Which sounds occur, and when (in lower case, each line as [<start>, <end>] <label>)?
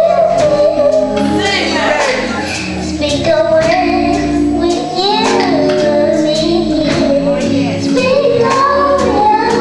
[0.00, 1.04] child singing
[0.00, 9.60] music
[1.30, 4.20] child singing
[2.14, 2.65] woman speaking
[4.51, 4.77] human voice
[4.85, 9.60] child singing
[7.09, 7.60] woman speaking